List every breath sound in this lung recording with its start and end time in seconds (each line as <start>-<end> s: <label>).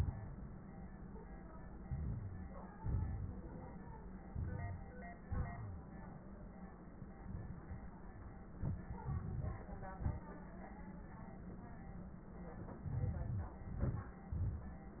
1.79-2.78 s: inhalation
2.79-3.88 s: exhalation
2.79-3.88 s: crackles
4.30-5.22 s: inhalation
5.20-6.07 s: wheeze
5.21-6.24 s: exhalation
7.13-8.03 s: inhalation
8.49-8.95 s: exhalation
8.49-8.95 s: crackles
8.95-9.96 s: inhalation
8.95-9.96 s: crackles
9.98-10.36 s: exhalation
12.78-13.19 s: crackles
12.79-13.21 s: inhalation
13.20-13.61 s: exhalation
13.20-13.61 s: crackles
13.64-14.26 s: inhalation
14.26-15.00 s: exhalation
14.26-15.00 s: crackles